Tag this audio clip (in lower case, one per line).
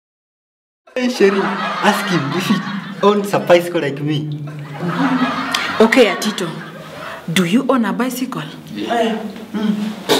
speech
snicker